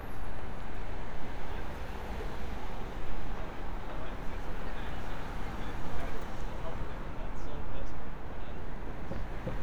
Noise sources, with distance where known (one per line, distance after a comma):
engine of unclear size, far
person or small group talking, far